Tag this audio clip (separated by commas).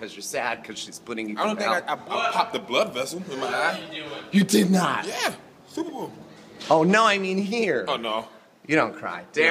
Speech